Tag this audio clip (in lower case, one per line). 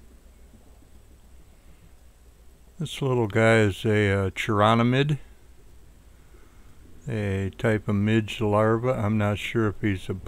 speech